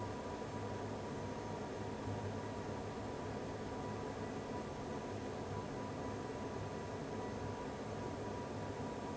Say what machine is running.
fan